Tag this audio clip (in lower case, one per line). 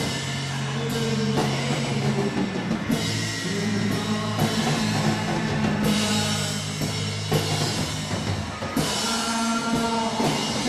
singing
music
musical instrument